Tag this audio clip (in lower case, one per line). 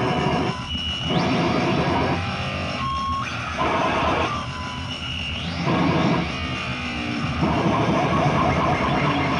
music
musical instrument
inside a small room